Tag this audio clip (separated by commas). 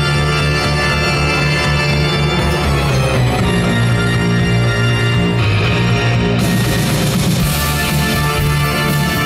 Music